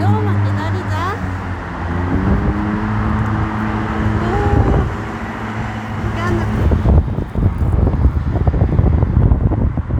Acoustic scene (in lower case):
street